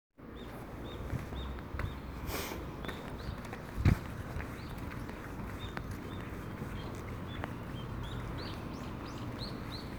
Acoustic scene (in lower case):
residential area